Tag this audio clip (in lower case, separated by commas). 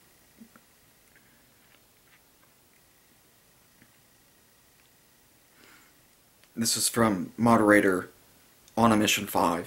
speech